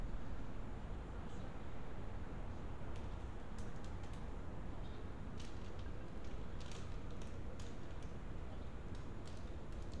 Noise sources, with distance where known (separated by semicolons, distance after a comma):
background noise